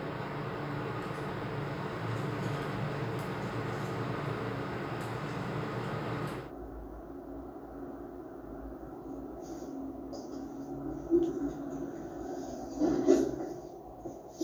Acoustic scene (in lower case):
elevator